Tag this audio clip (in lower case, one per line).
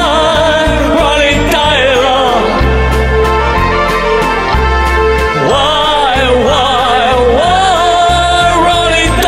music